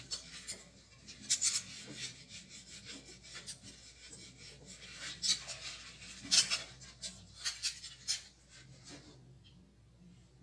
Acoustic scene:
kitchen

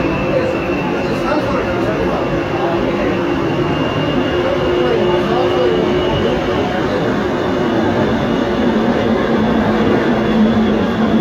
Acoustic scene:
subway train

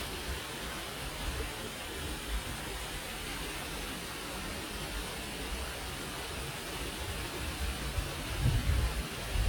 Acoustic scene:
park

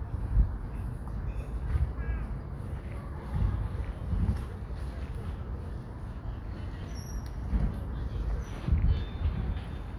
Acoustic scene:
park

